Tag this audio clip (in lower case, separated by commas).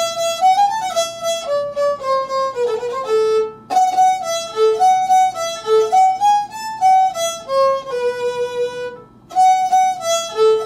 music, violin, musical instrument